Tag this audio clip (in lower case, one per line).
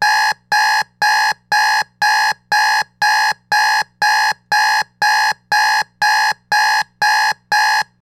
alarm